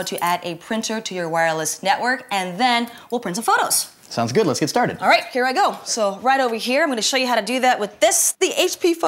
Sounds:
Speech

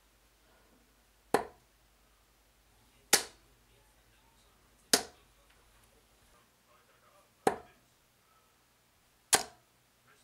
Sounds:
inside a small room

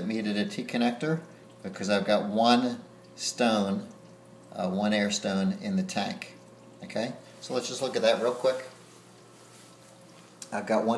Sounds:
Speech

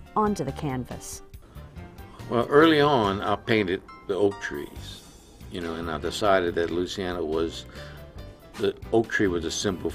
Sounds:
Music, Speech

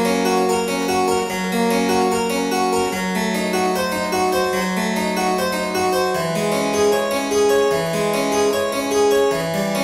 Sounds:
playing harpsichord

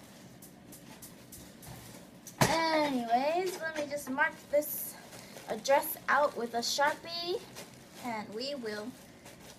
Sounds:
Speech

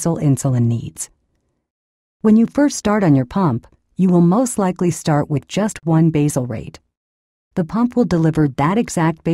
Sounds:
Speech

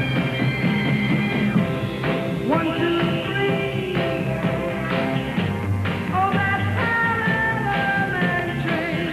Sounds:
Music

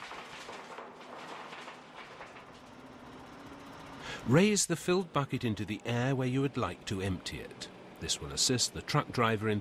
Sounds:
Truck, Speech, Vehicle

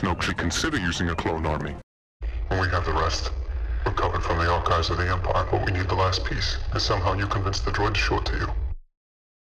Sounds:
Speech

